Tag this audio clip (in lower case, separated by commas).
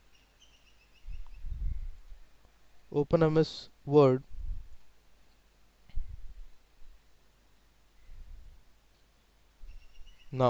speech